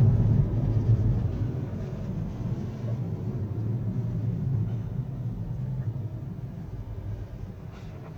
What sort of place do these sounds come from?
car